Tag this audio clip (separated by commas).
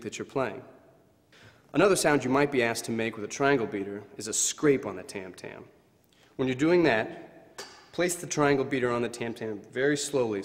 Speech